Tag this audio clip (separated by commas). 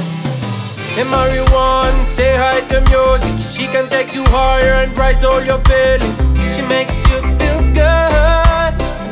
Music